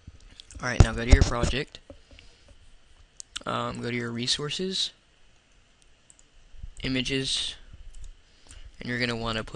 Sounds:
speech

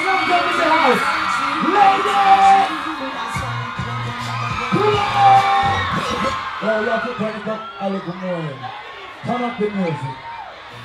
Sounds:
speech, music

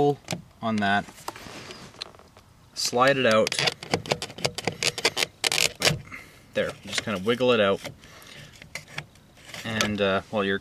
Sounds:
speech

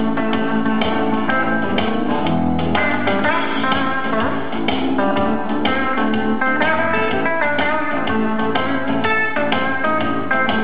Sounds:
guitar, blues, plucked string instrument, musical instrument, music

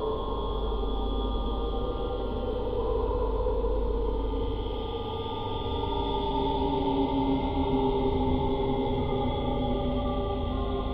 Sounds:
music, soundtrack music

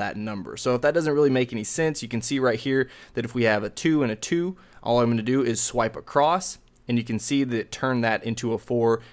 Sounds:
inside a small room, speech

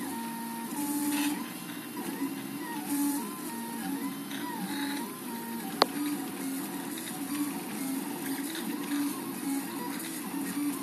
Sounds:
printer printing

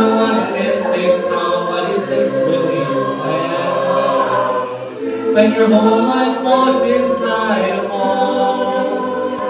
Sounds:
choir, singing, crowd, a capella, music

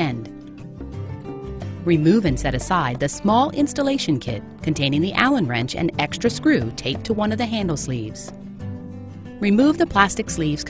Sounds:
speech, music

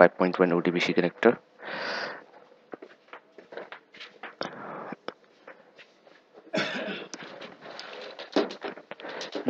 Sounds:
speech

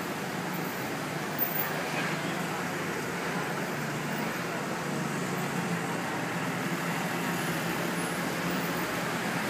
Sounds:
outside, urban or man-made

